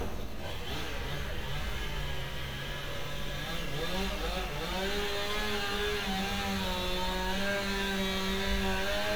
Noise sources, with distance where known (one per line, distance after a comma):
unidentified powered saw, near